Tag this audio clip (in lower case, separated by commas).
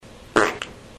fart